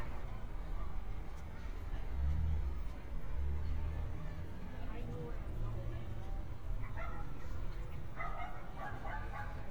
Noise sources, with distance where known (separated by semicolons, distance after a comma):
person or small group talking; dog barking or whining, near